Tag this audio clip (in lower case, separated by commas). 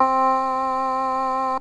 musical instrument, keyboard (musical), music